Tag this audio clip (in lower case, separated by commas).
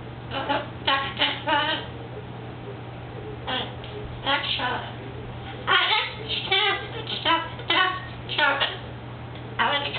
speech